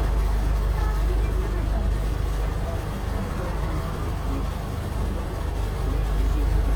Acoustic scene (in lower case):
bus